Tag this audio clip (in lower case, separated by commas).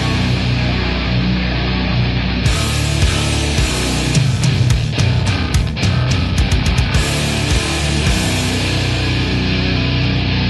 music